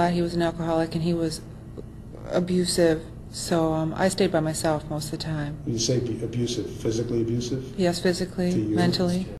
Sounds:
Speech

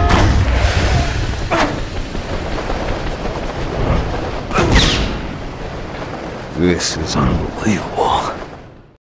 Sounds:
Speech

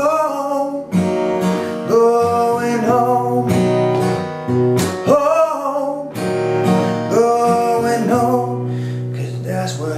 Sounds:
Music, Strum

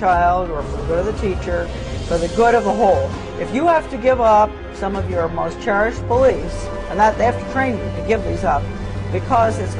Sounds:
Speech, Music

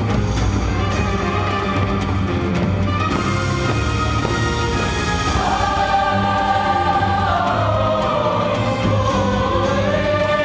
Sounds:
Music

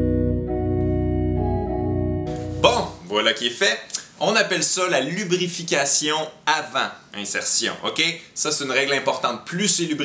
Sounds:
Speech, Music

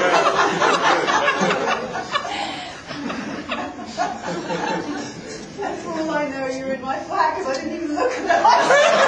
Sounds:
Snicker, Speech, people sniggering

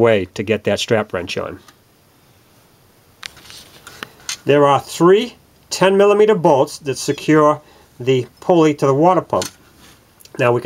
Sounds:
Speech

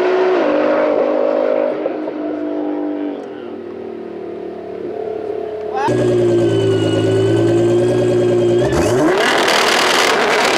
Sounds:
Speech, outside, rural or natural, Car, auto racing, Vehicle

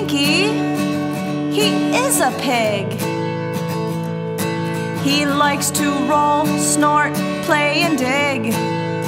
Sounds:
Music

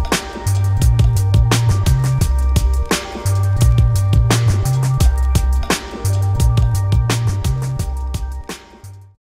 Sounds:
Music, Sampler

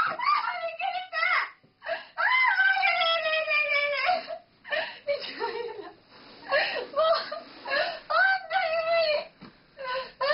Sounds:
Speech

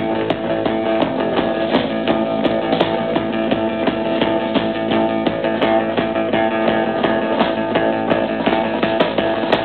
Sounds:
Music

